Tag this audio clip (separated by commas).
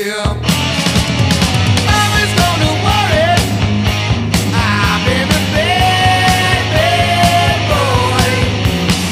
Music